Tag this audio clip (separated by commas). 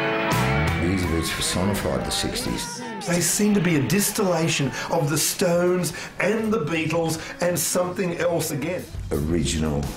Speech, Shout, Music